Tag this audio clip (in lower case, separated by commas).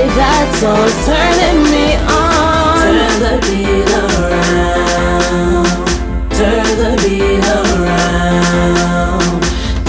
reggae, music, song